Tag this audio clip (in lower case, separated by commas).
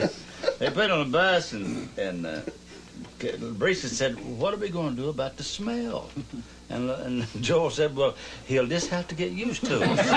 speech